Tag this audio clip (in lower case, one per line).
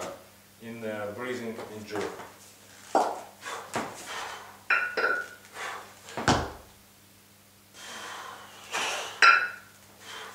speech